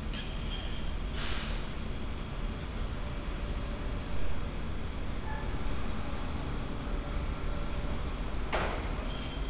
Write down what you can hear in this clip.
large-sounding engine, non-machinery impact